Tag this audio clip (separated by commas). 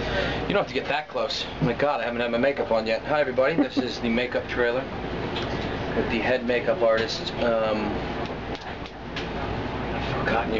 Speech, inside a small room